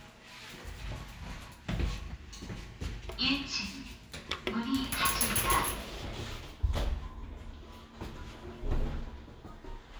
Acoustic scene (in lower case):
elevator